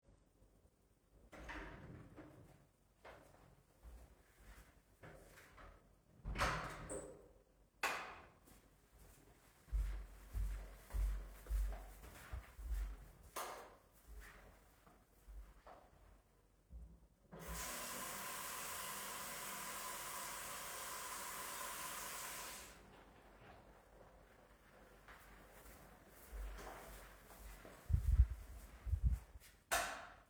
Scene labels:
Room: hallway; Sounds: door (more than once), footsteps, light switch, running water

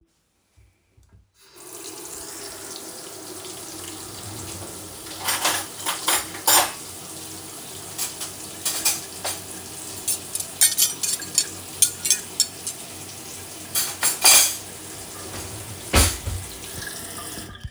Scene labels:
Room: kitchen; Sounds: running water, cutlery and dishes

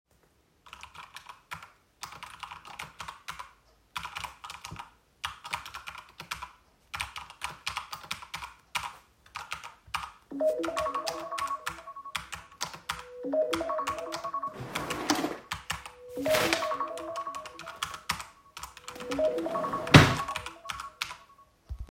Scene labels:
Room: office; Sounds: keyboard typing, phone ringing, wardrobe or drawer (more than once)

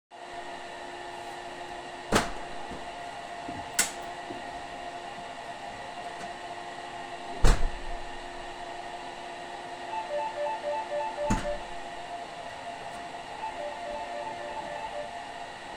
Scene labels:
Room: hallway; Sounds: vacuum cleaner, door (more than once), bell ringing

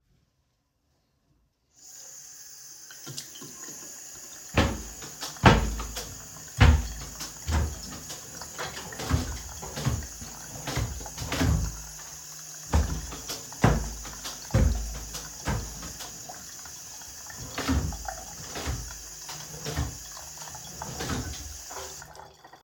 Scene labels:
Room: bedroom; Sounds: running water, wardrobe or drawer (more than once)

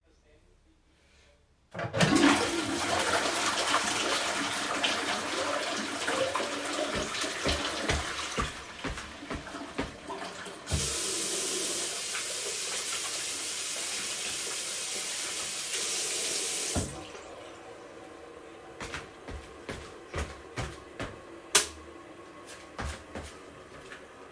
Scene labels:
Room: lavatory; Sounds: toilet flushing, footsteps, running water, light switch

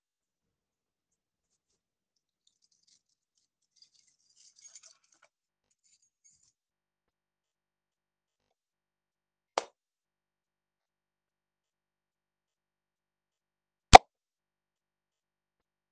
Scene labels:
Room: hallway, office; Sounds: keys

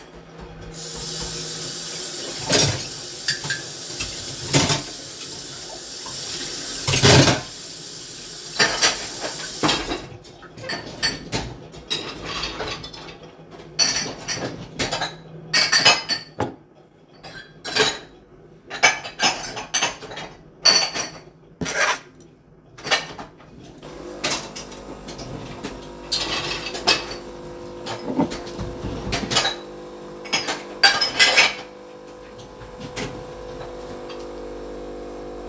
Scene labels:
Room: kitchen; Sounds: running water, cutlery and dishes, coffee machine

